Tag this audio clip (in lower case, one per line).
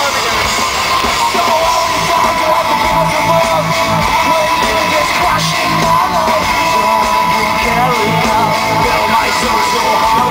music